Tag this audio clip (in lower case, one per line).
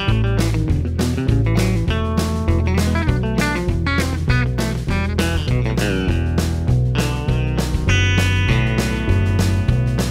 bass guitar
plucked string instrument
musical instrument
electric guitar
strum
guitar
music
acoustic guitar